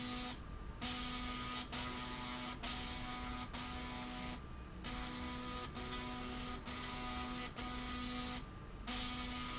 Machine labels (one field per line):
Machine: slide rail